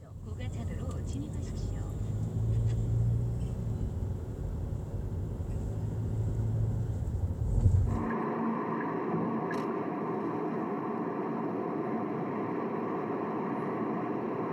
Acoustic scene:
car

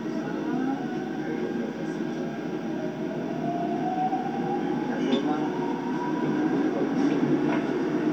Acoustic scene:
subway train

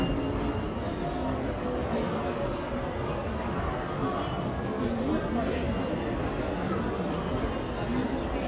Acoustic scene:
crowded indoor space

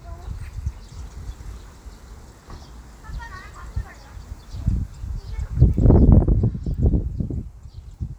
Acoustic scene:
park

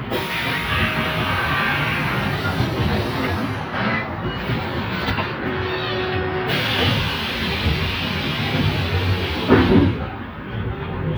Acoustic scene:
bus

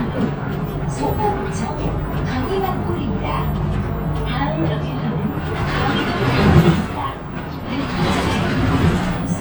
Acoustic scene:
bus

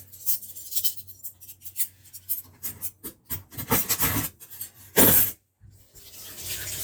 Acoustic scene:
kitchen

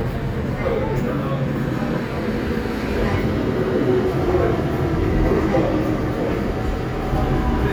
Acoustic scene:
subway station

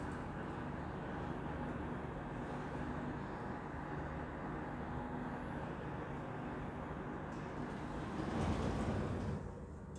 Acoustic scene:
elevator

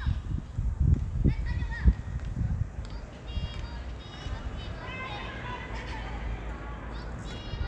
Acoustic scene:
park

